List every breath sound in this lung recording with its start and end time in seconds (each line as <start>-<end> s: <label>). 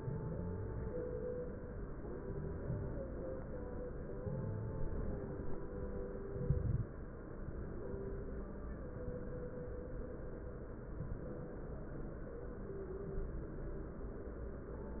0.00-0.93 s: inhalation
0.00-0.93 s: stridor
2.09-3.02 s: inhalation
2.09-3.02 s: stridor
4.12-5.05 s: inhalation
4.12-5.05 s: stridor
6.31-6.91 s: inhalation
6.31-6.91 s: crackles